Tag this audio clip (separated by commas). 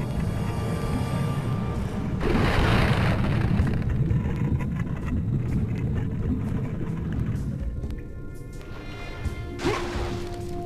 Music